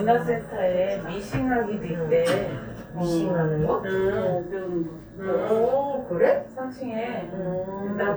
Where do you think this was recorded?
in an elevator